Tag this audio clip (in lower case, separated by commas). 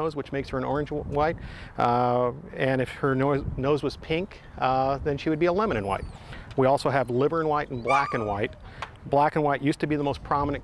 speech, yip